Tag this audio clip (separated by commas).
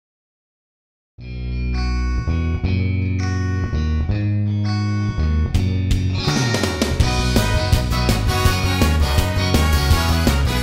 Music